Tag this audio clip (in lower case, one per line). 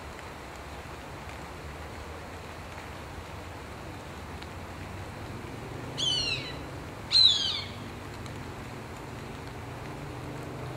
wood thrush calling